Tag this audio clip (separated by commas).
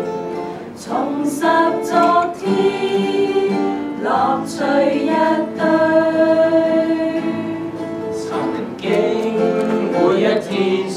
Music, Singing, Vocal music, Choir